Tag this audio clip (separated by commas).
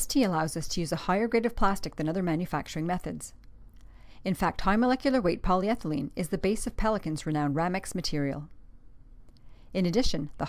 Speech